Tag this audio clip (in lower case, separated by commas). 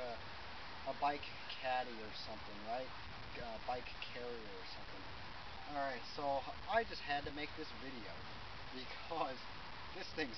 speech